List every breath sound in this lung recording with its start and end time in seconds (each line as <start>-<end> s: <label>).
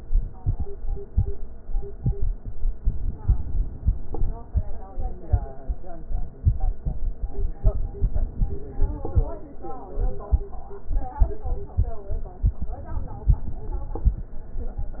3.02-4.32 s: inhalation
7.94-9.24 s: inhalation
12.81-14.12 s: inhalation